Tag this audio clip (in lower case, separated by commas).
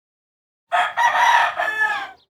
livestock, chicken, fowl, animal